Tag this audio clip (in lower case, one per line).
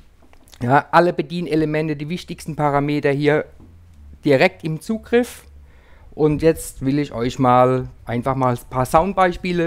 speech